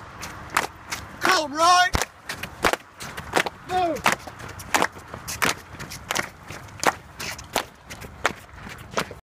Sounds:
Speech, Run

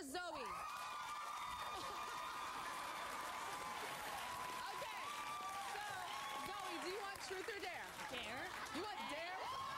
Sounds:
Speech

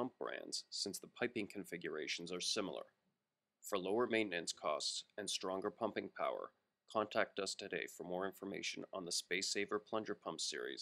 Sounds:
Speech

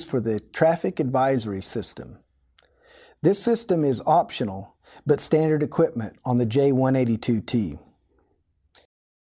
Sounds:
Speech

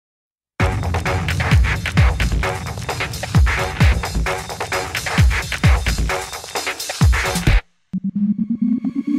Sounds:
Music, Singing

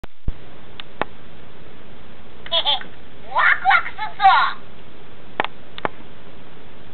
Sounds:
Speech

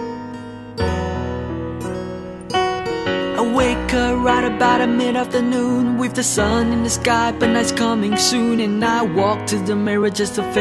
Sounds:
Music

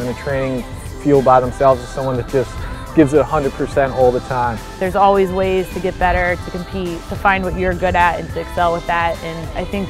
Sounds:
playing lacrosse

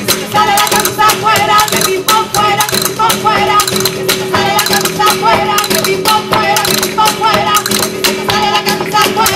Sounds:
Music, Music of Latin America

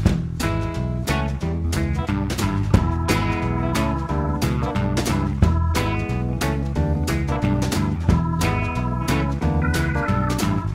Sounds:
Music

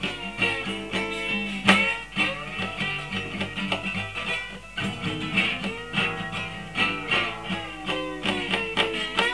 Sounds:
Guitar, Music, Musical instrument

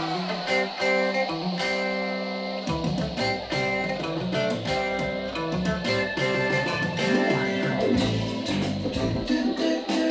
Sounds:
Blues, Music

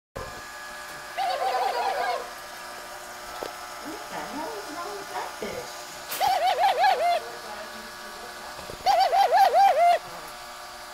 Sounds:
Speech, Bird, Noise, Pigeon

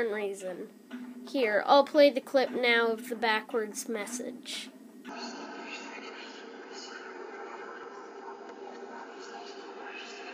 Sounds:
Speech, Television

